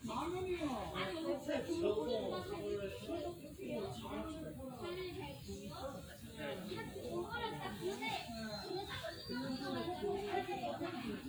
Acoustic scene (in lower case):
park